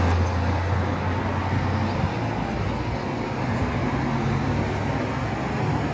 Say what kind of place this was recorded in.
street